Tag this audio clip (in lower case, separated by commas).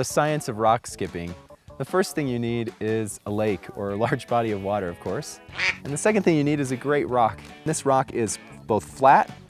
music, speech